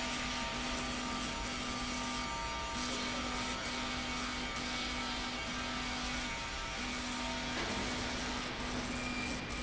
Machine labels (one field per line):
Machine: slide rail